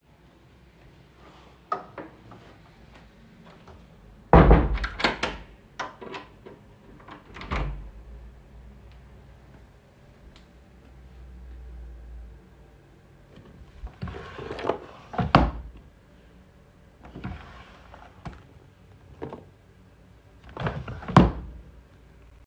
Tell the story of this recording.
closing a room door, then opening and closing a wardrone drawer.